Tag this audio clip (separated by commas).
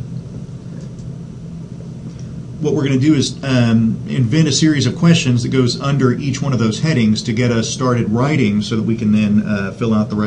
Speech